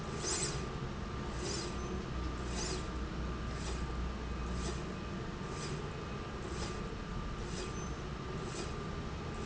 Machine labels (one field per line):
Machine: slide rail